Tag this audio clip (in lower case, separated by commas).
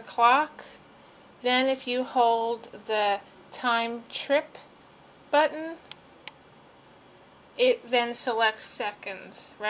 speech